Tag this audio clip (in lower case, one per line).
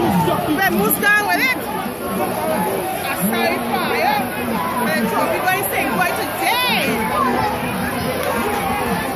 speech